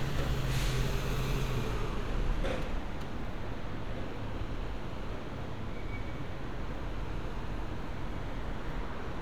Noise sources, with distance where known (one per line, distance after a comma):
large-sounding engine, near